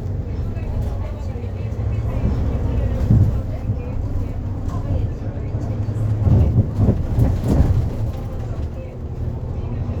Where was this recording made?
on a bus